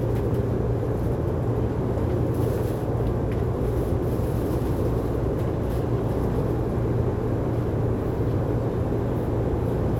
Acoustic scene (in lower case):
subway train